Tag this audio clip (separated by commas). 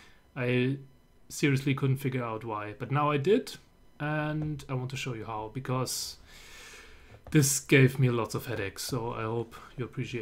Speech